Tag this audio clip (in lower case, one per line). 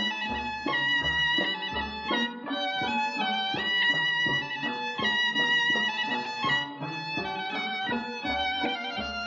music